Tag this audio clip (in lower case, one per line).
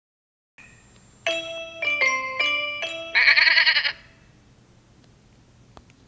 bleat
music
sheep